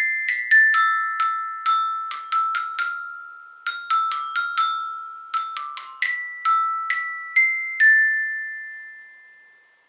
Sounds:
playing glockenspiel

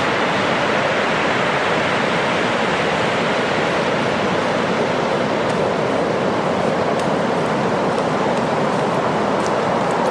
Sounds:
Waves

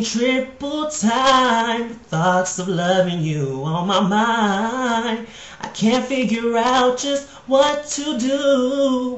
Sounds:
Male singing

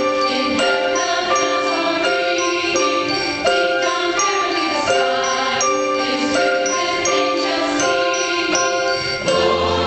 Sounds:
Music, Choir

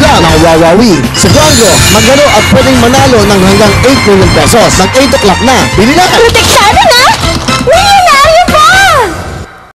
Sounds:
Speech, Music

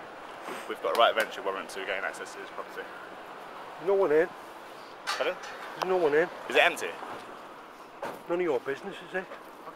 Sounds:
Speech

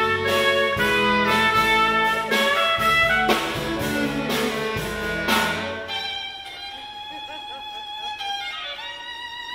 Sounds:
Music, Jazz

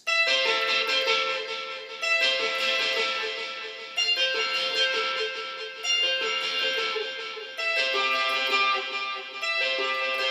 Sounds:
Guitar, Music, Musical instrument, Plucked string instrument

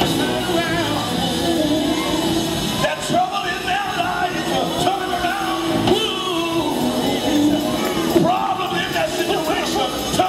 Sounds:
Male singing, Music

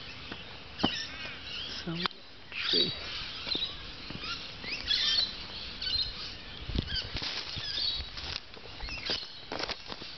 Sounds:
Speech

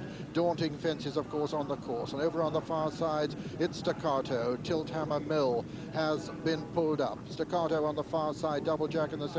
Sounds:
Animal, Speech

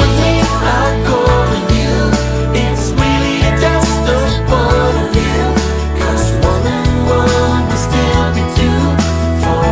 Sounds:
inside a small room, Music

